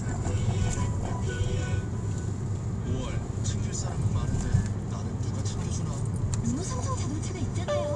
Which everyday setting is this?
car